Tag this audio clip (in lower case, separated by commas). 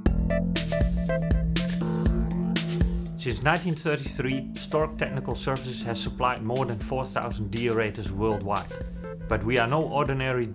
speech, music